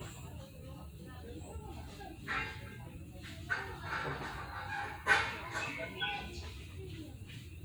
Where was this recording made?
in a park